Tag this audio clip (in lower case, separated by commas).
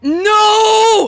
yell, human voice, shout